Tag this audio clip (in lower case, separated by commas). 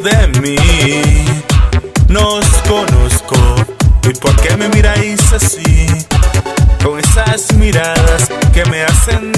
electronica, music